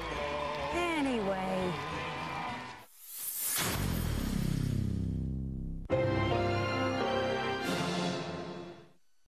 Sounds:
Music, Speech, Television

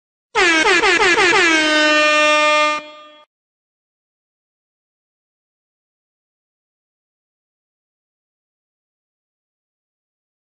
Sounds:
air horn

